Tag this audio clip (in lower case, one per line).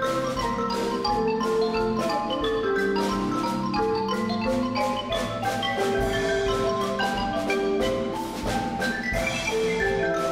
xylophone
glockenspiel
mallet percussion